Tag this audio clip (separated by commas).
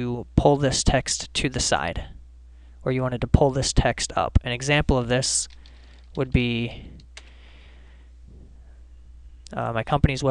Speech